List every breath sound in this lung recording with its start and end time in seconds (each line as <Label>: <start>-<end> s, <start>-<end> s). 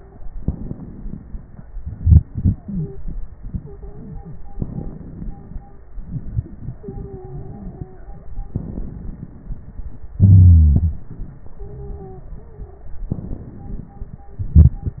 Inhalation: 0.14-1.75 s, 4.49-5.84 s, 8.24-10.12 s, 13.08-14.47 s
Exhalation: 1.70-4.49 s, 5.82-8.27 s, 10.13-13.10 s, 14.36-15.00 s
Wheeze: 2.63-2.88 s, 10.13-10.97 s
Stridor: 2.74-2.99 s, 3.60-4.37 s, 6.79-8.27 s, 11.61-12.99 s
Crackles: 0.14-1.75 s, 4.49-5.84 s, 8.24-10.12 s, 13.08-14.41 s, 14.46-15.00 s